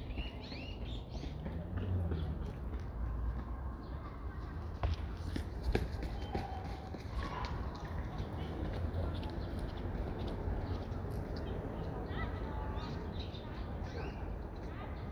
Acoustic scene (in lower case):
residential area